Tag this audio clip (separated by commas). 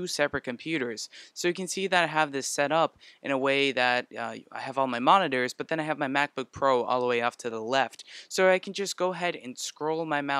Speech